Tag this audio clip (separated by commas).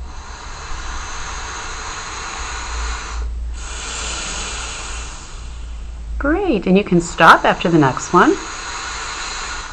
inside a small room, Speech